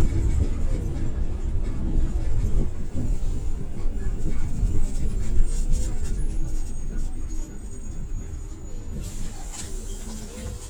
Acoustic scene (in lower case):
bus